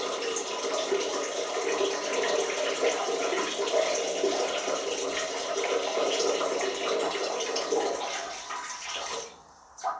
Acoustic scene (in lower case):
restroom